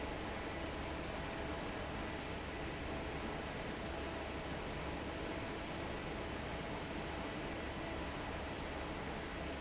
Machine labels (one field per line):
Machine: fan